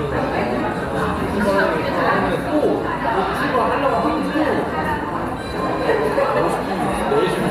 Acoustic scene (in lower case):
cafe